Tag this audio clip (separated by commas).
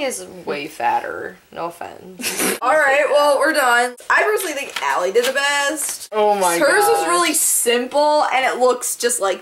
inside a small room, Speech